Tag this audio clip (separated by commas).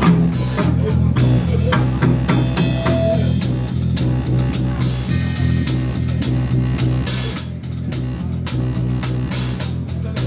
Music